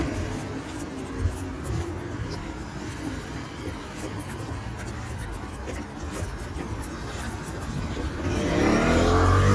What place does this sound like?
street